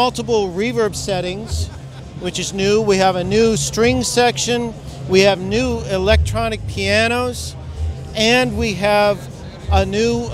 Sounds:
Speech, Music

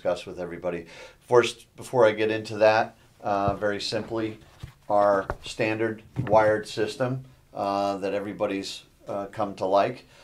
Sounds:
Speech

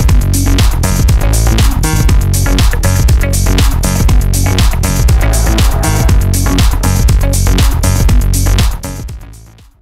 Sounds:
Electronica, Techno, Trance music, Music, Electronic music

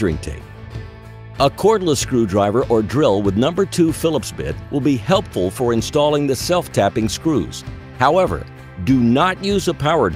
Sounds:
Speech, Music

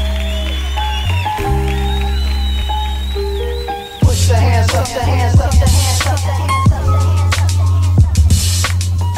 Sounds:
Hip hop music, Music

